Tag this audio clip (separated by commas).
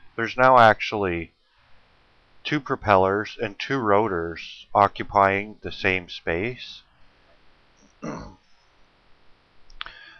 Speech